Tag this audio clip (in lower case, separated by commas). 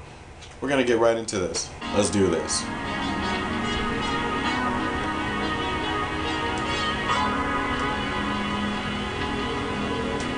speech, music